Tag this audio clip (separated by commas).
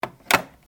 Alarm, Telephone